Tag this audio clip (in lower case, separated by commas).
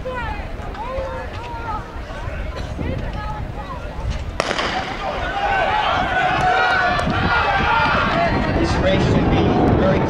speech